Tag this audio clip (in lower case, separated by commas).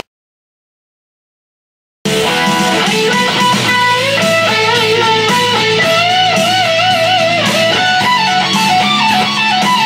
acoustic guitar, plucked string instrument, electric guitar, musical instrument, music, guitar, strum